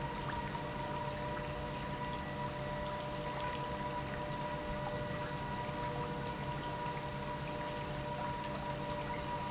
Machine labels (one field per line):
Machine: pump